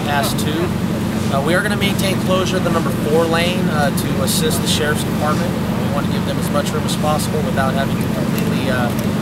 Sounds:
Speech

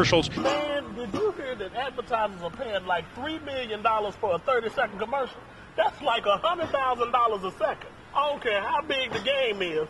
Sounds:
Speech

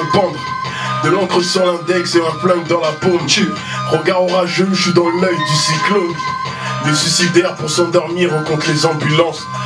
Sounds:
Music, Radio

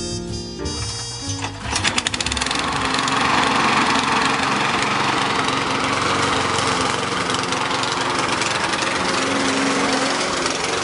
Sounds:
outside, urban or man-made, Lawn mower, lawn mowing

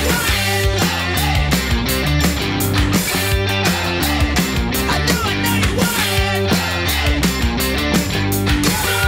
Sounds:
Techno, Music, Electronic music

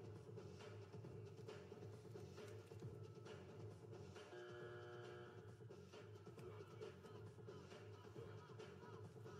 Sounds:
Music

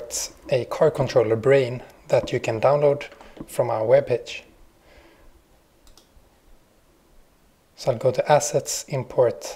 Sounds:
Speech

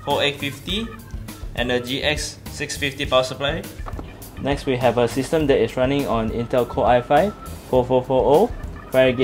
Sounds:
Speech, Music

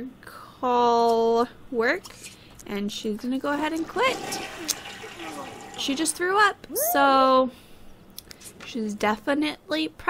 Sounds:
Speech

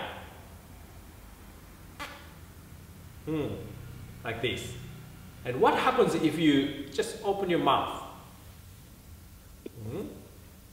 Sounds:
Speech

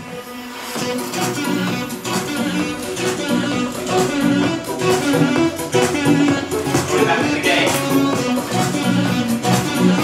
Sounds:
Speech, Music

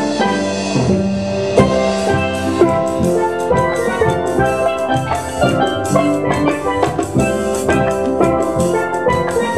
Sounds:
Music, Drum, Musical instrument, Drum kit, Steelpan, Jazz

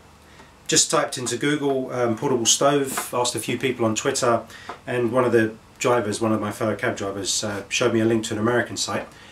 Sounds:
Speech

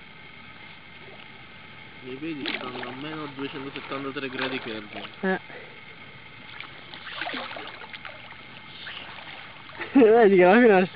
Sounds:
Speech, Vehicle

